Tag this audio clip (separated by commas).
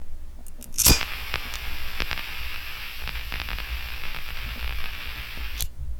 Fire